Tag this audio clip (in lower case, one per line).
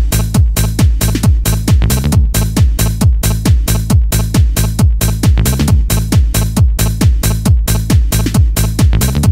music